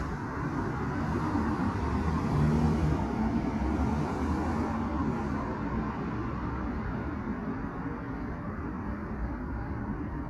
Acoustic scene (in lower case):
street